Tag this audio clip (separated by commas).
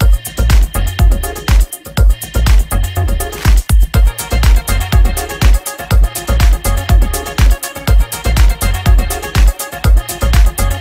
Music, Sampler